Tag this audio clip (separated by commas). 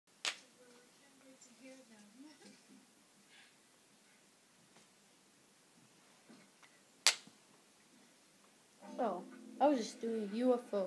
Child speech, Speech, inside a small room